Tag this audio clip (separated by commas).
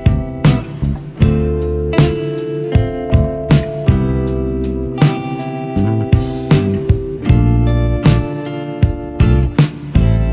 Music